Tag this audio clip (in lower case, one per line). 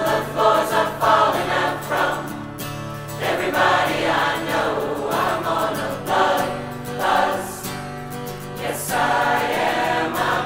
singing choir